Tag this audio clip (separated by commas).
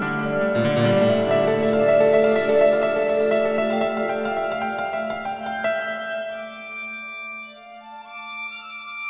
Music